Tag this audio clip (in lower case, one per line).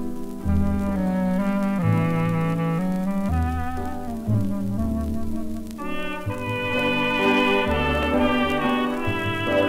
music